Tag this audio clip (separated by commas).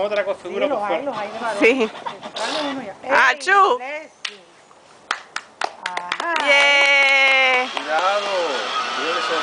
Speech, Vehicle